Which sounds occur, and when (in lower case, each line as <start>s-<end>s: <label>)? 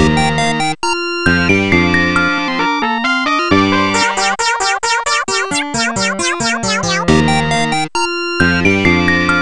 0.0s-9.4s: music
0.0s-9.4s: video game sound